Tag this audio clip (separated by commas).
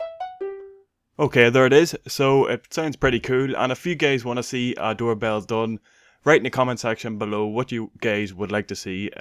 Speech, Music, Musical instrument